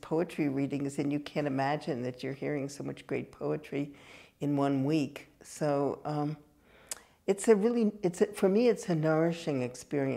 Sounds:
speech

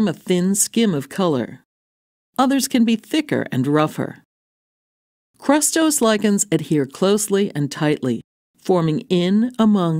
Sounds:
speech

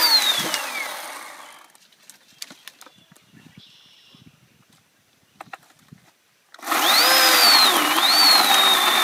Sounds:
outside, rural or natural, chainsaw

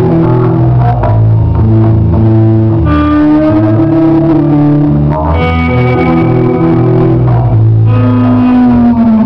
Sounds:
music

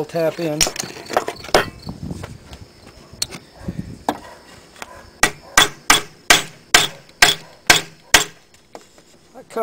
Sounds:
speech

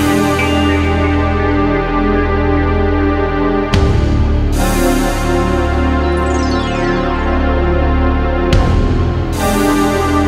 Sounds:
music, soundtrack music, theme music

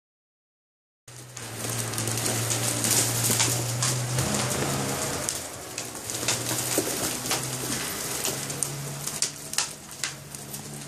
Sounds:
dove, bird

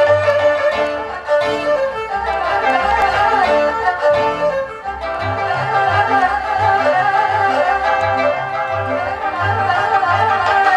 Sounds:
playing erhu

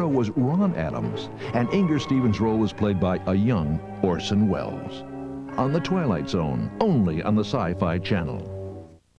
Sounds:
music, speech

